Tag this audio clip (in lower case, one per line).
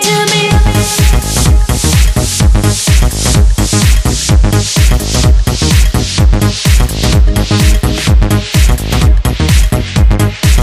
music